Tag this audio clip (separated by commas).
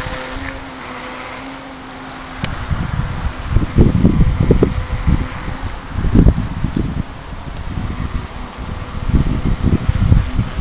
Vehicle, Motorboat